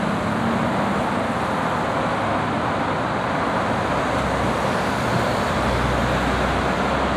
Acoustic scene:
street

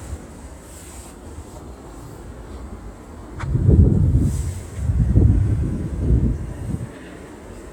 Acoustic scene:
residential area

